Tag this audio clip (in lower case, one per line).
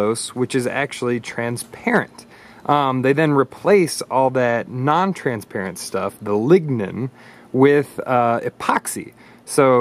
speech